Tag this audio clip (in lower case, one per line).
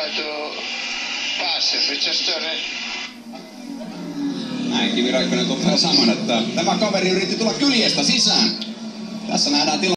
speech